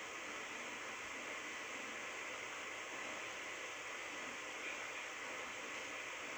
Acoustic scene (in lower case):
subway train